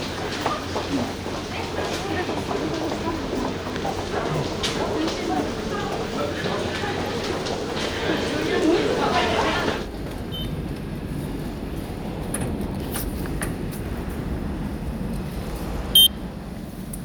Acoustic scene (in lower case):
subway station